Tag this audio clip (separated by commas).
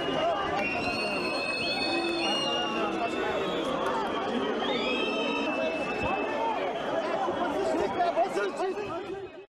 Speech